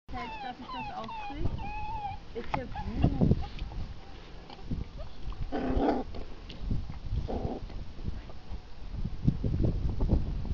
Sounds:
domestic animals, dog, speech, animal

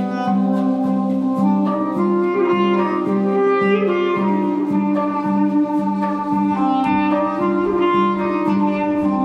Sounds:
clarinet, music, musical instrument

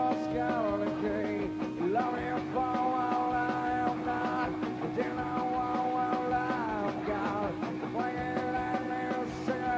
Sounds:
music

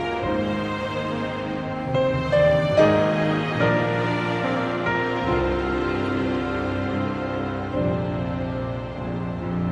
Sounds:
music

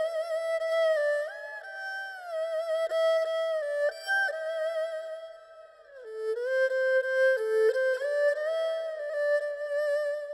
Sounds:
playing erhu

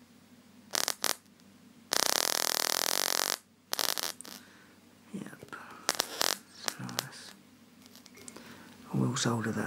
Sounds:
speech, inside a small room

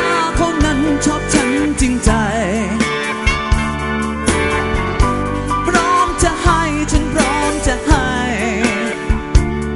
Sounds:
pop music, music

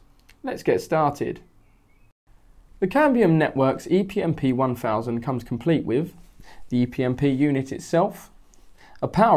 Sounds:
speech

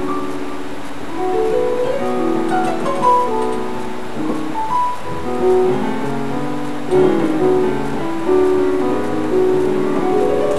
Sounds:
rhythm and blues, gospel music, music

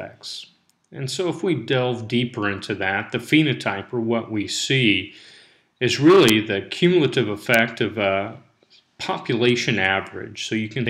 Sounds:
speech

